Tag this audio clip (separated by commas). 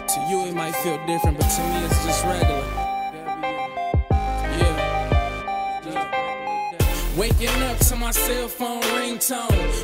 New-age music, Tender music, Music